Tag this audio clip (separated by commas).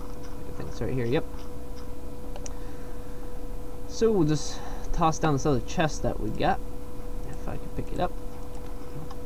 Speech